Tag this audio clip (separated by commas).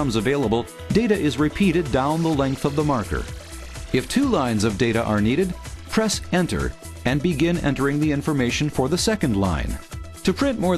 Music, Speech